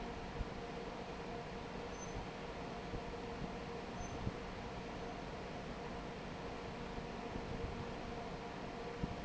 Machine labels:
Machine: fan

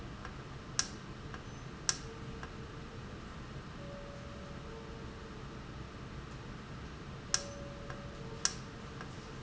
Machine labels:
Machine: valve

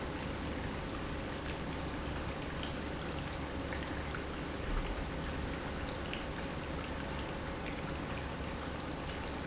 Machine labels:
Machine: pump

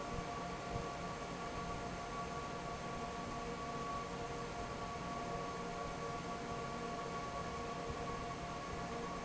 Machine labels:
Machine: fan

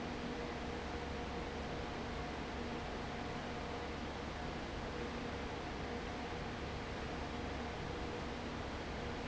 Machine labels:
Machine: fan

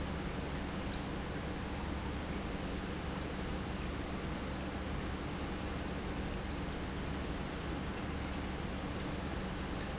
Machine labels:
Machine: pump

